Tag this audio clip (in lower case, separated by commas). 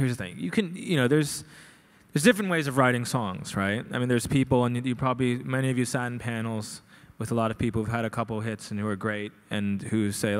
speech